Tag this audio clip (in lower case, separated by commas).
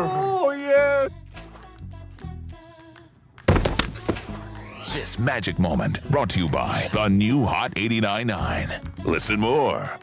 speech, music